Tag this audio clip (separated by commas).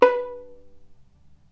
Bowed string instrument, Musical instrument, Music